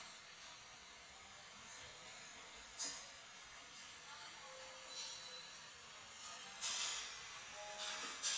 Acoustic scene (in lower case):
cafe